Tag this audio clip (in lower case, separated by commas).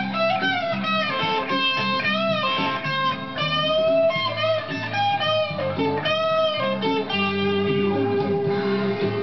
guitar, acoustic guitar, music, strum, musical instrument